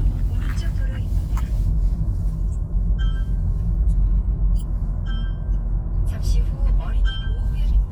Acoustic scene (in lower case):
car